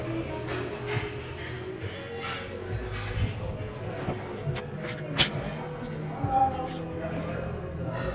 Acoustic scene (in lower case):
crowded indoor space